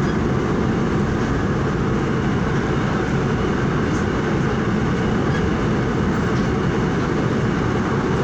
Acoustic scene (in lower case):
subway train